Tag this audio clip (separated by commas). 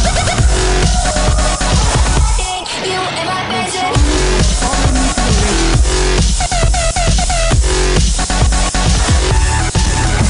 Music